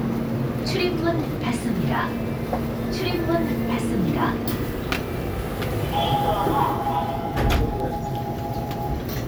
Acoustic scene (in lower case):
subway train